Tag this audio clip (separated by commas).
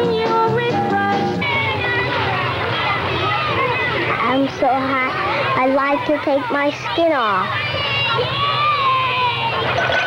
Speech, Music, speech babble